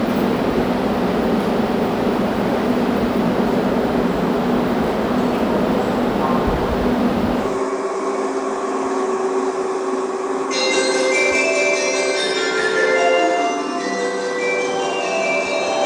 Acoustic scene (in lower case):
subway station